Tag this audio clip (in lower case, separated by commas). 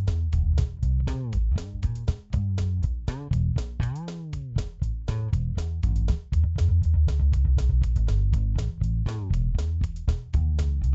percussion